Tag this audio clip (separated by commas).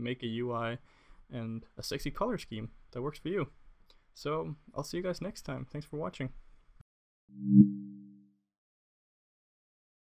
Speech, Silence